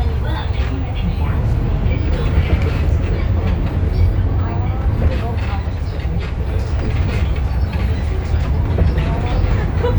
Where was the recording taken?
on a bus